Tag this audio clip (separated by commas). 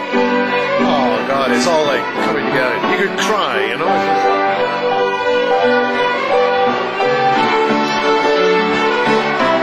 Speech, Violin, Music, Musical instrument